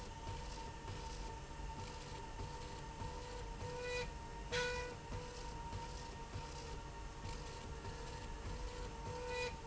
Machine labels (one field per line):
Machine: slide rail